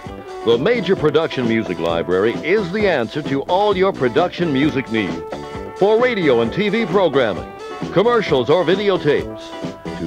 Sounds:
music, speech

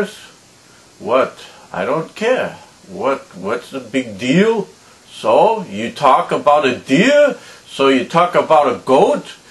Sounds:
speech

